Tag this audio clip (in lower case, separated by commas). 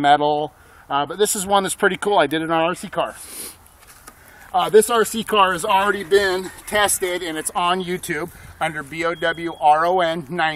speech